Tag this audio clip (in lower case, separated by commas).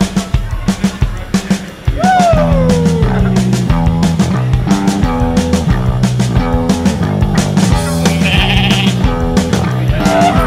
music, sheep